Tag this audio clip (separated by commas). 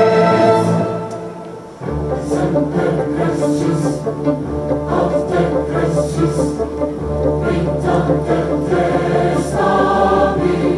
Orchestra, Choir, Music, Singing